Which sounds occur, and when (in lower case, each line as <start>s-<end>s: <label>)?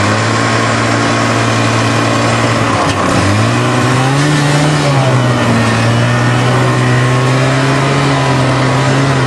0.0s-9.2s: mechanisms